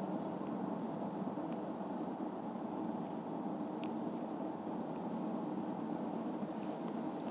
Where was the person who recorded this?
in a car